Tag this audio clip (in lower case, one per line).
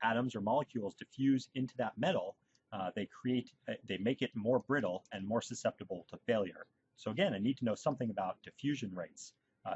speech